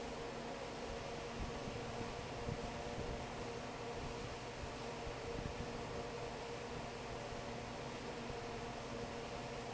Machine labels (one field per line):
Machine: fan